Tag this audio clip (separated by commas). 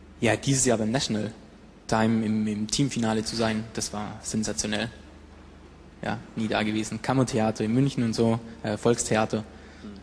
Speech